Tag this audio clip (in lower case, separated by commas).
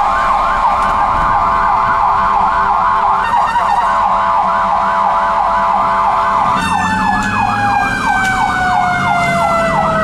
ambulance (siren), emergency vehicle, police car (siren), siren